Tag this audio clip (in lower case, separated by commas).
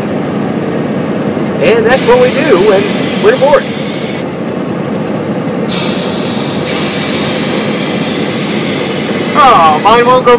speech, vehicle